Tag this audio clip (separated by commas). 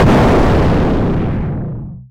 Explosion